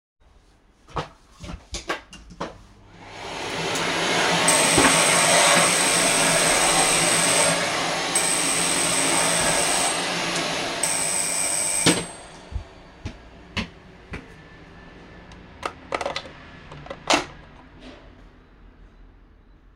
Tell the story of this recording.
I started the vacuum cleaner and shortly afterwards my doorbell rang; so I went to open the door